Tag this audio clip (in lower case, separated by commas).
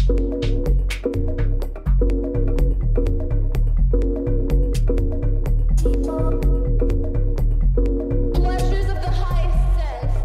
music, speech